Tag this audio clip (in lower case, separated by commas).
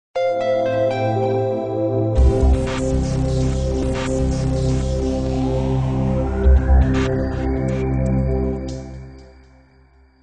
music, throbbing